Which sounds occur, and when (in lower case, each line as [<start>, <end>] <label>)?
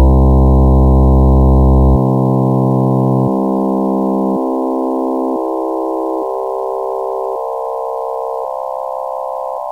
[0.00, 9.71] background noise
[0.00, 9.71] chirp tone